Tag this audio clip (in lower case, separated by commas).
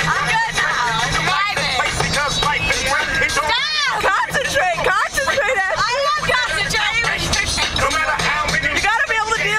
car, music, male singing, motor vehicle (road), rapping, speech